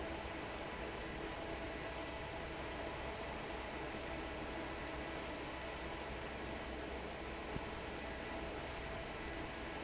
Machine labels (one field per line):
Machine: fan